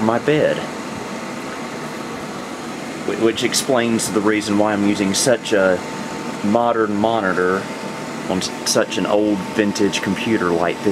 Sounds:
inside a small room, Speech

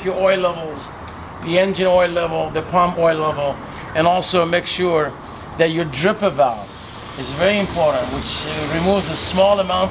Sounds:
Speech, Vehicle

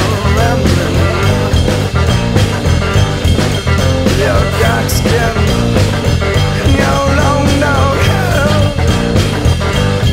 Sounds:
Music

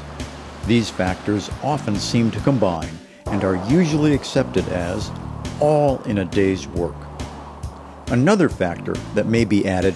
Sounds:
Music, Truck, Vehicle, Speech

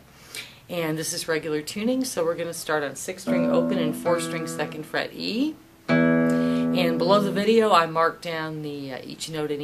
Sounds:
Strum, Speech, Music, Guitar, Musical instrument, Plucked string instrument

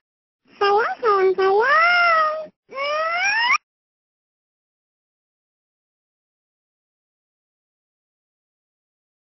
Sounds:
Speech

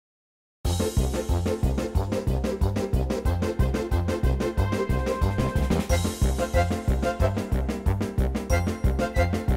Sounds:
Music

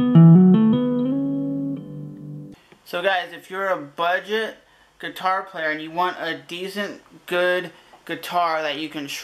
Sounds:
Musical instrument, Guitar, Electric guitar, Plucked string instrument, Music, inside a small room, Electronic tuner, Speech

